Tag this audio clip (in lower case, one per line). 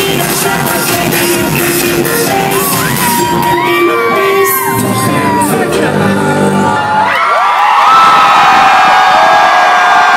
music